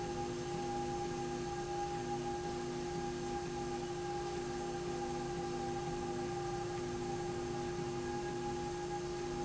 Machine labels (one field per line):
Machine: slide rail